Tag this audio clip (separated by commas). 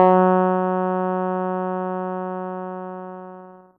Keyboard (musical), Music, Musical instrument